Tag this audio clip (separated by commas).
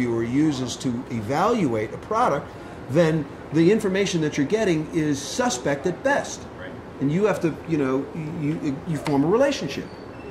Speech